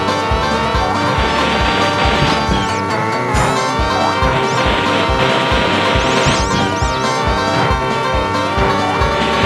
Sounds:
Music

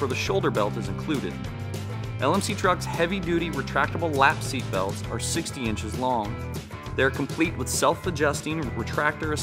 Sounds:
Speech, Music

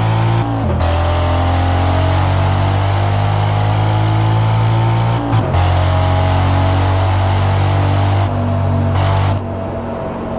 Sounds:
Motor vehicle (road), Car

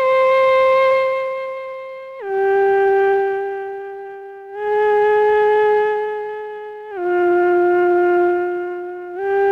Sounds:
Sampler

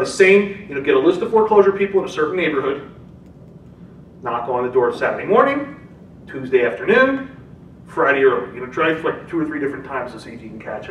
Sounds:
Speech

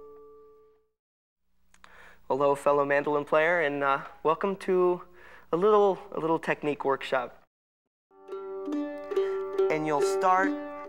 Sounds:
Music, Speech, Mandolin

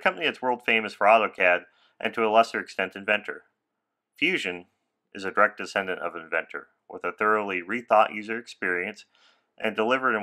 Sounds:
Speech

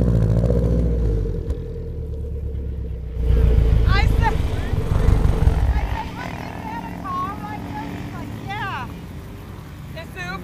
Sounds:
outside, rural or natural, Car, Speech, Vehicle

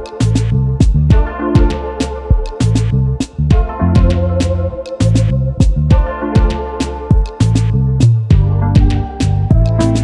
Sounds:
Music

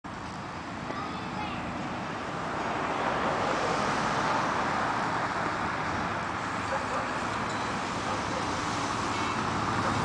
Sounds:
roadway noise, Speech

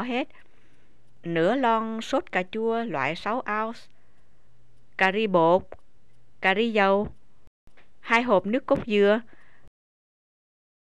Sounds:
Speech

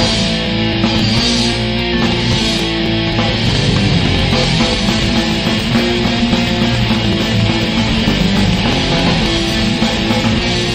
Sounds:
Music

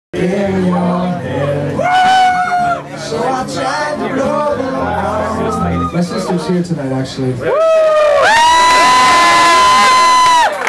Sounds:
Crowd

